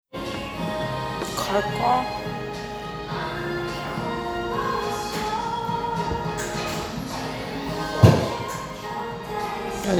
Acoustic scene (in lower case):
cafe